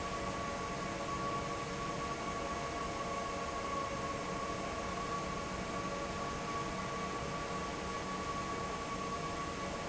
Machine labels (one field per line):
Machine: fan